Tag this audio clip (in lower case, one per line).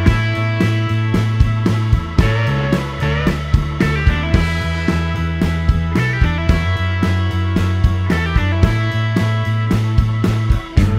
music